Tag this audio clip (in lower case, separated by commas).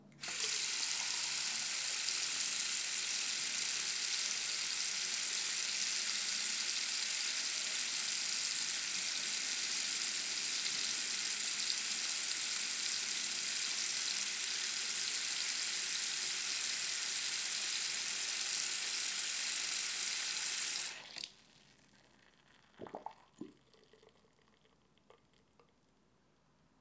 home sounds, faucet, sink (filling or washing)